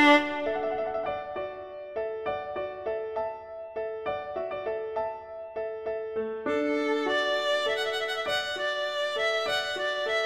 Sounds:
music
fiddle
musical instrument

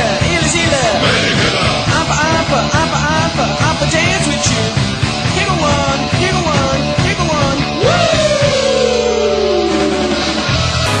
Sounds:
music

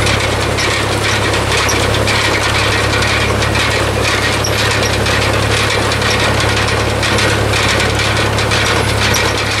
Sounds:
vehicle

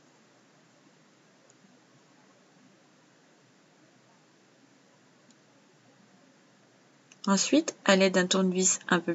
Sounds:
speech

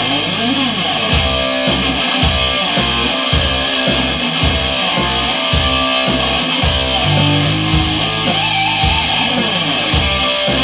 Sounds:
musical instrument
strum
plucked string instrument
acoustic guitar
guitar
music

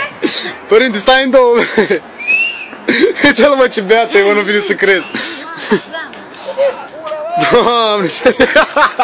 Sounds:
speech

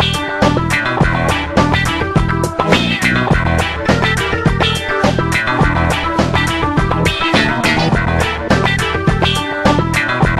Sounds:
music

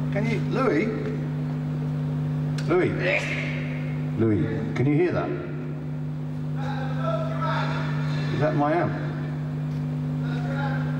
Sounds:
speech

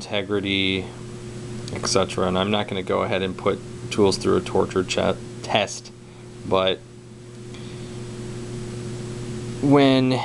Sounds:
speech

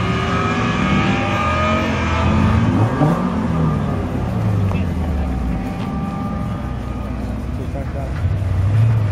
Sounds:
vehicle
speech
car

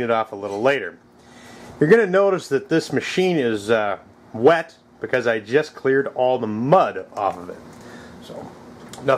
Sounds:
speech

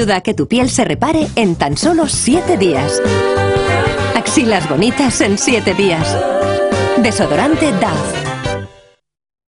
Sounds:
music
speech

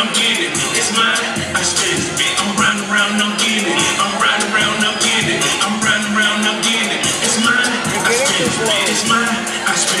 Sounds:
speech
music

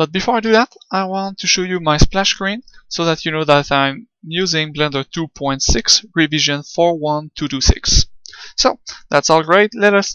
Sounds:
speech

